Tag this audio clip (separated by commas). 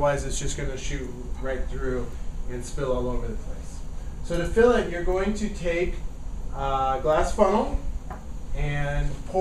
Speech